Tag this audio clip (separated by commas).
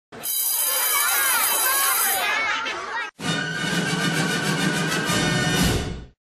Music, Speech